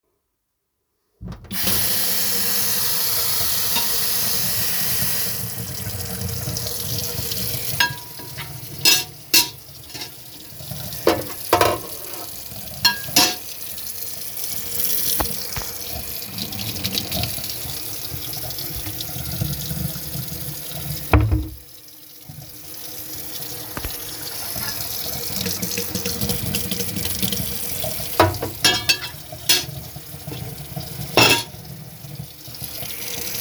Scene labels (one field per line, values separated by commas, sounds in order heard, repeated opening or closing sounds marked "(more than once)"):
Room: kitchen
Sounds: running water, cutlery and dishes